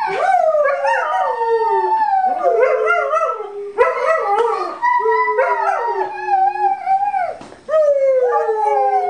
Multiple small dogs howl